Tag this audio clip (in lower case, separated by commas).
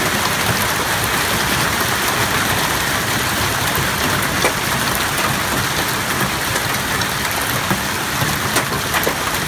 hail